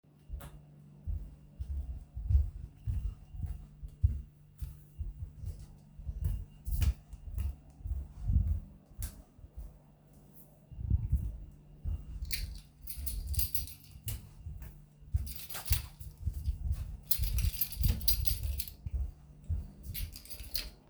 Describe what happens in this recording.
I was walking while occasionaly playing with my keys.